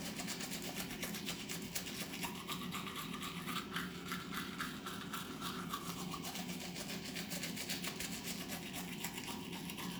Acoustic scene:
restroom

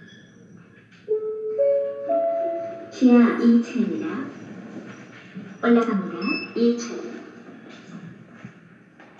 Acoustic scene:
elevator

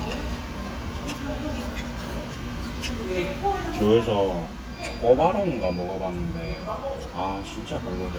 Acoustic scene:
restaurant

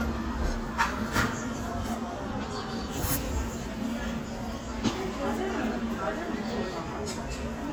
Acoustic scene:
crowded indoor space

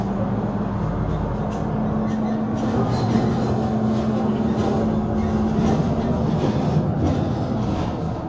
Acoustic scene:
bus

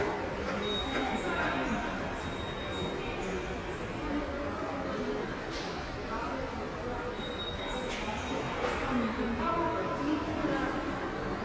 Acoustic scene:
subway station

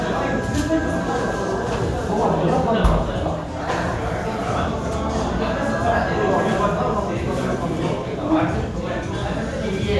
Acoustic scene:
restaurant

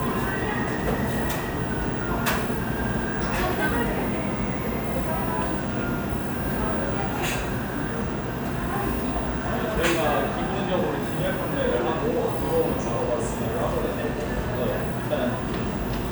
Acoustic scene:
cafe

